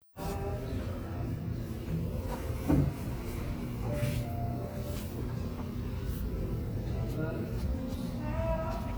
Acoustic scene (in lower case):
cafe